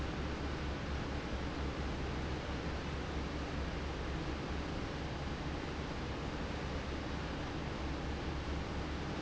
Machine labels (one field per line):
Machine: fan